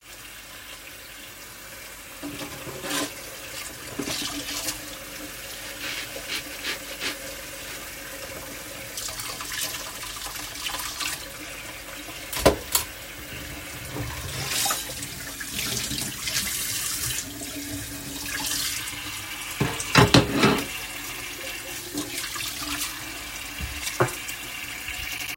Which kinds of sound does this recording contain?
running water, cutlery and dishes